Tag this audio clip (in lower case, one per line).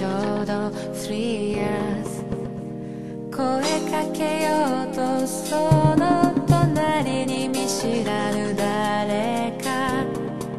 music